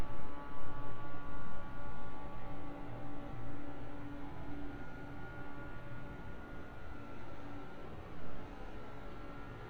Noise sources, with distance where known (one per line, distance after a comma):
background noise